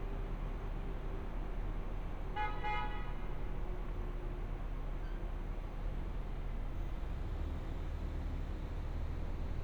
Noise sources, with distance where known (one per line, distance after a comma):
car horn, near